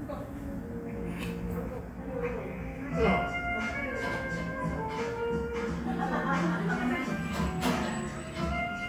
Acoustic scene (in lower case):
cafe